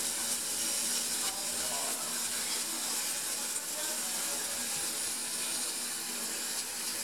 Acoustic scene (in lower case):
restaurant